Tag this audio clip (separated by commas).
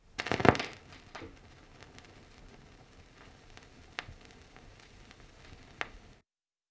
Crackle